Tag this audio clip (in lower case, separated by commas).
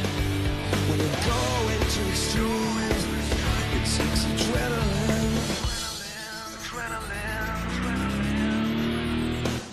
music